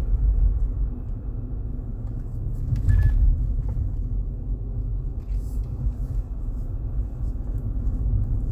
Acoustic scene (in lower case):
car